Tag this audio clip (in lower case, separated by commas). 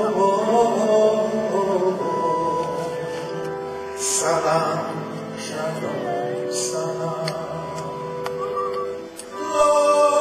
music, male singing